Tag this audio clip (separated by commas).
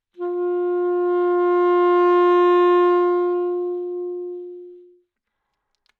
Musical instrument, woodwind instrument, Music